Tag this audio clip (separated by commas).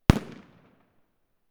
Explosion, Fireworks